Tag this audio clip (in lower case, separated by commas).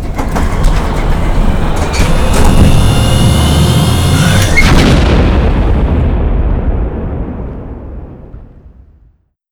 explosion